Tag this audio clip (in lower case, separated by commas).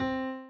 music, keyboard (musical), piano, musical instrument